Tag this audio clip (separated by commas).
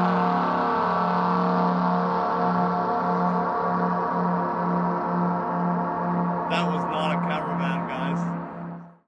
Speech